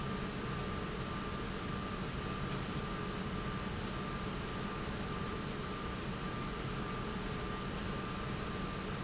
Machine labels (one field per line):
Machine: pump